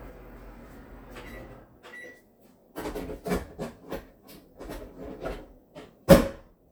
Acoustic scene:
kitchen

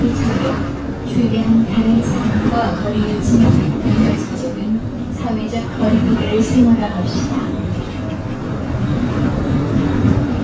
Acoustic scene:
bus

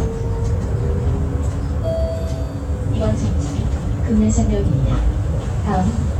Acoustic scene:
bus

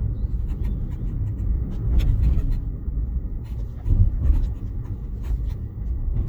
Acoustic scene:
car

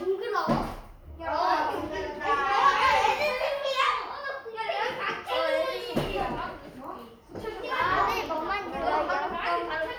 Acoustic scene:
crowded indoor space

